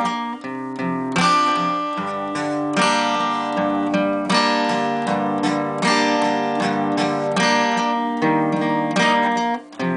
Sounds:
Music, Guitar, Musical instrument

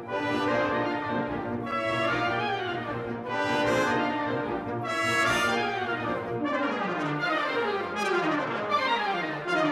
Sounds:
Music

